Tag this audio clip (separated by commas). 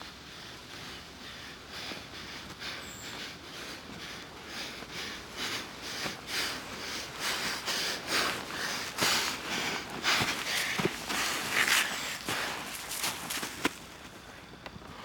Respiratory sounds, Breathing